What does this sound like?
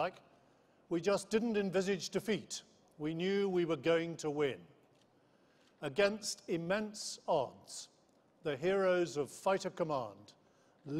An adult male is speaking informatively